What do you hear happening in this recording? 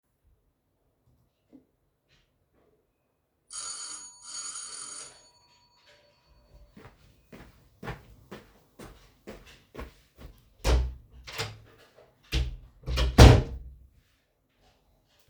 The doorbell rings from outside, I then walk towards the door, open and close the door, and someone steps inside.